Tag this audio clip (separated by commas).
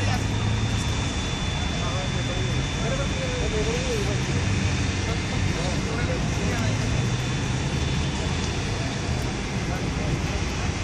Speech, sailing ship